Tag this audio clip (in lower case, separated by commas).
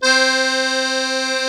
music, musical instrument, accordion